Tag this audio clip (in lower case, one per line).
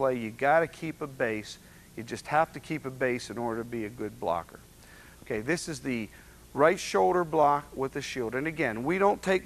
speech